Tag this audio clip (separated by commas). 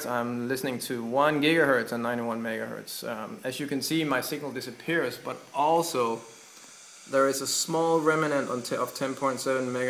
Speech